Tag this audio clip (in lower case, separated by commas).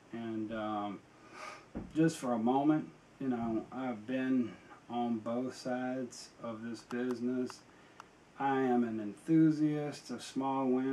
speech